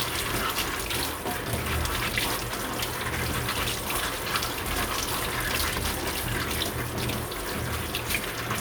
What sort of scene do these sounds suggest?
kitchen